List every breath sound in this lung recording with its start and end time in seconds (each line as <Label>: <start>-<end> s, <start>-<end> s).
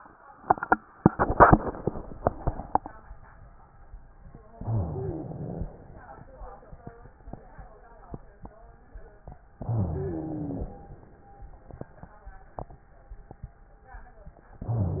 Inhalation: 4.52-5.73 s, 9.58-10.80 s
Wheeze: 4.61-5.39 s, 9.58-10.80 s